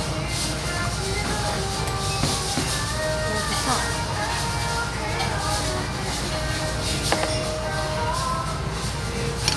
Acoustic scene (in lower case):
restaurant